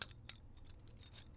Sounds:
Keys jangling, home sounds

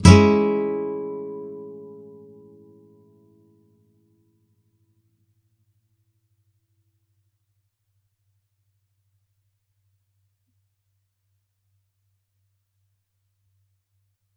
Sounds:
Music, Musical instrument, Plucked string instrument, Guitar

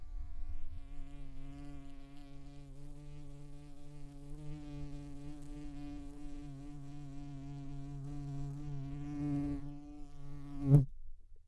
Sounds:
Buzz, Wild animals, Animal, Insect

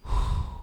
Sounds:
Respiratory sounds, Breathing

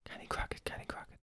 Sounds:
Whispering, Human voice

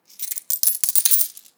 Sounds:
Coin (dropping), Domestic sounds

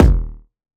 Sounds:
Drum, Bass drum, Musical instrument, Percussion, Music

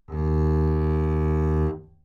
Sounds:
Musical instrument, Bowed string instrument, Music

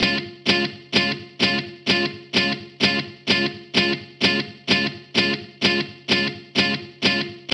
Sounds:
Musical instrument, Plucked string instrument, Music, Guitar

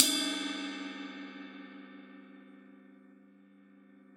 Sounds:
Music, Cymbal, Crash cymbal, Percussion, Musical instrument

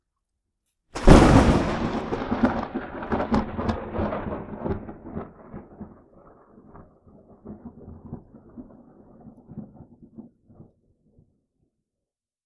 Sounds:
Thunder, Thunderstorm

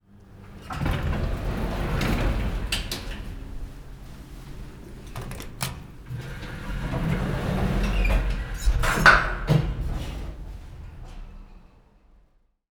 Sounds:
home sounds, Sliding door, Door

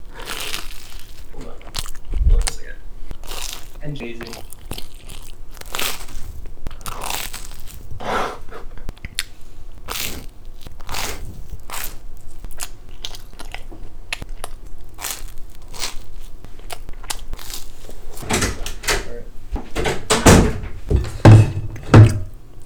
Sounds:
mastication

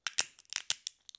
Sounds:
Crack

